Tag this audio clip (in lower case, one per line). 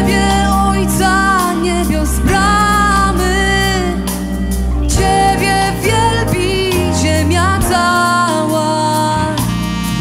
music